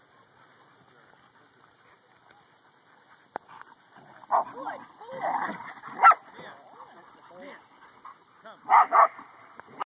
A dog panting followed by barking and people speaking